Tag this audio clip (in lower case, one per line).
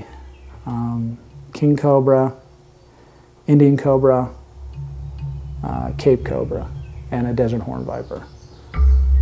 music
animal
speech
inside a small room